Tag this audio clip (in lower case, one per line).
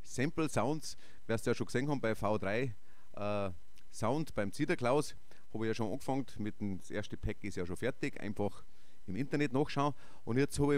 speech